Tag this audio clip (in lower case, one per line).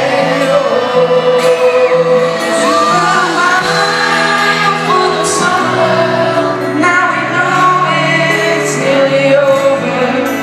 music